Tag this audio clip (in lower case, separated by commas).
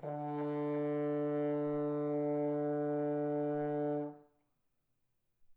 brass instrument, music, musical instrument